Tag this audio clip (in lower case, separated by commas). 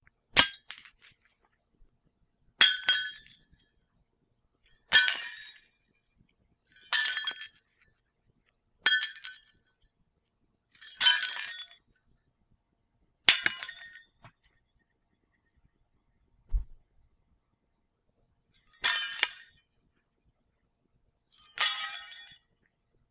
shatter, glass